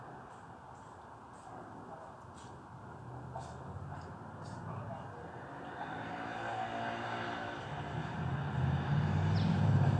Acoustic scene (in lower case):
residential area